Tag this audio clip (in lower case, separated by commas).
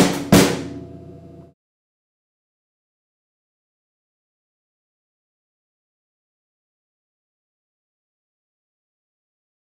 drum, musical instrument, music